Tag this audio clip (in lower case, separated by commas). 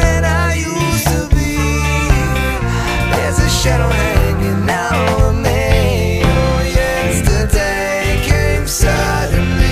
drum, music